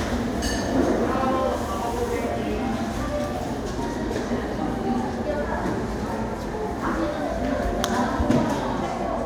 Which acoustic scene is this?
cafe